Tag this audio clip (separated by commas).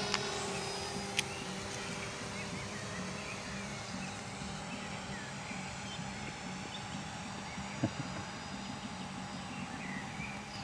Aircraft